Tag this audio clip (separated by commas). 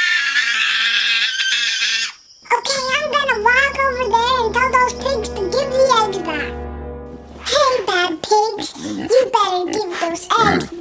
inside a small room, Speech, Music